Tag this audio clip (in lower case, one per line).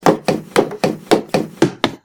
run